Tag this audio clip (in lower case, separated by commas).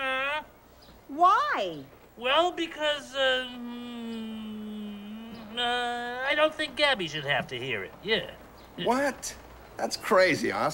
speech